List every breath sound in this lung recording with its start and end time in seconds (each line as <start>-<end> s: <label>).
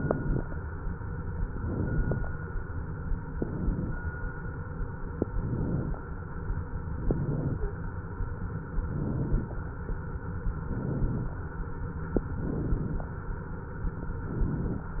0.00-0.54 s: inhalation
1.57-2.31 s: inhalation
3.33-3.97 s: inhalation
5.34-5.98 s: inhalation
7.02-7.80 s: inhalation
7.50-7.86 s: stridor
8.80-9.57 s: inhalation
10.59-11.37 s: inhalation
12.29-13.06 s: inhalation
14.18-14.96 s: inhalation